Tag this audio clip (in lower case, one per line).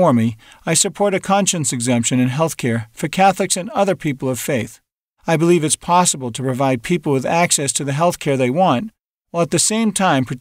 speech